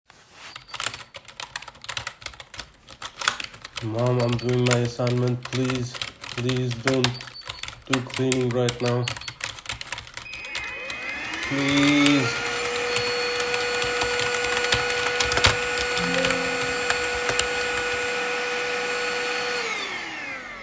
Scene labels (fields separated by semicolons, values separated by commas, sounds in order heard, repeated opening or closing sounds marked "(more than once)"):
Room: living room; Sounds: keyboard typing, vacuum cleaner